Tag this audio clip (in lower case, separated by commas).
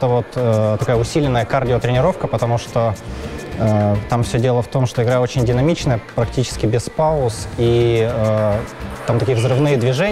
playing squash